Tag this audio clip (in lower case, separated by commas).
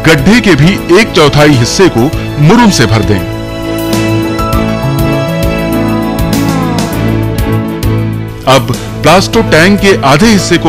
speech, music